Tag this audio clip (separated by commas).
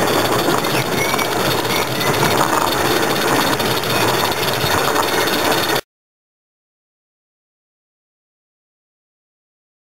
Train